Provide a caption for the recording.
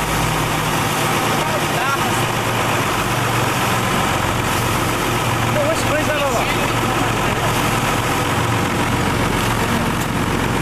A boat motor is running, and an adult male is speaking in the background